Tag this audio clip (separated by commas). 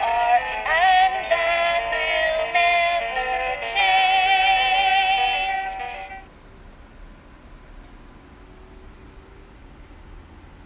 Music